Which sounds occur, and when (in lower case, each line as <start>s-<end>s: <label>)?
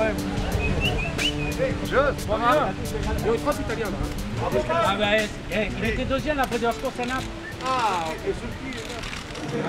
0.0s-0.2s: man speaking
0.0s-9.1s: conversation
0.0s-9.6s: music
0.6s-1.6s: whistling
1.6s-2.7s: man speaking
2.9s-4.0s: man speaking
4.3s-5.2s: man speaking
5.5s-7.3s: man speaking
6.4s-6.6s: single-lens reflex camera
6.8s-7.3s: single-lens reflex camera
7.6s-8.2s: single-lens reflex camera
7.6s-9.0s: man speaking
8.6s-9.6s: single-lens reflex camera
9.3s-9.6s: crowd